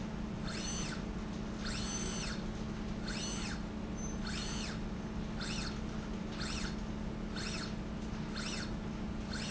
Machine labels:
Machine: slide rail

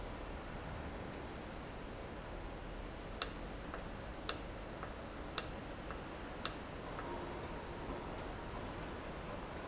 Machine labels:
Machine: valve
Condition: normal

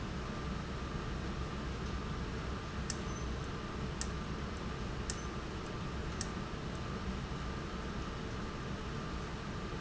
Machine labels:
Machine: valve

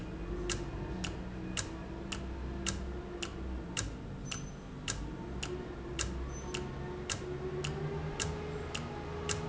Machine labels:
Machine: valve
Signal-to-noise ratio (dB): -6 dB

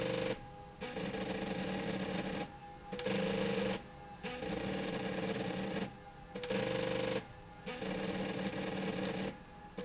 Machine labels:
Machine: slide rail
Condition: abnormal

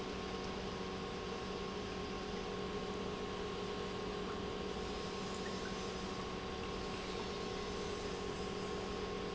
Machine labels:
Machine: pump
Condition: normal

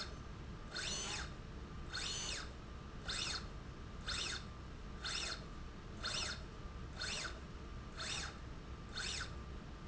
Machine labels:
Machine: slide rail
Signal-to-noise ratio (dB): 6 dB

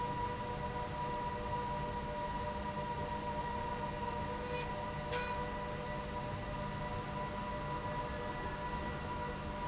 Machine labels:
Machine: slide rail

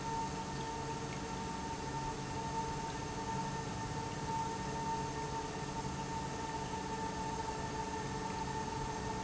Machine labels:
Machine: pump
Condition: normal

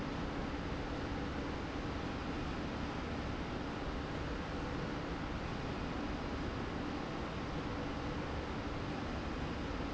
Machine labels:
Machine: slide rail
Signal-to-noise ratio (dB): -6 dB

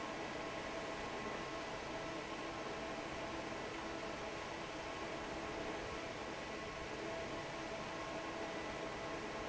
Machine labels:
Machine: fan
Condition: normal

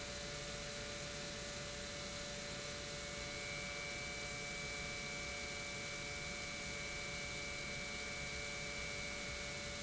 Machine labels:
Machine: pump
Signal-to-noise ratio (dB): 6 dB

